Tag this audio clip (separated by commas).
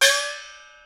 Music, Gong, Musical instrument, Percussion